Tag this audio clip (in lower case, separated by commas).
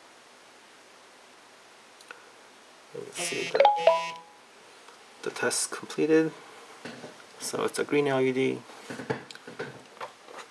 telephone, bleep